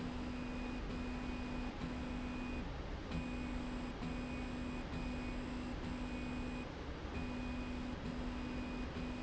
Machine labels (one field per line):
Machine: slide rail